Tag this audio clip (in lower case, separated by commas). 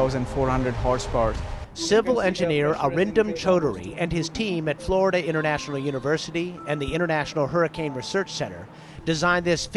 speech, music